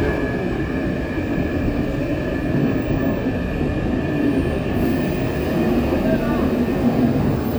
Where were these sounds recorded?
on a subway train